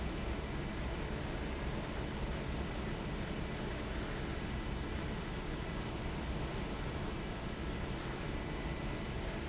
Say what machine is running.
fan